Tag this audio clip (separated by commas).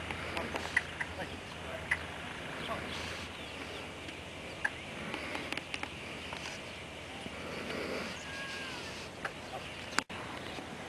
Speech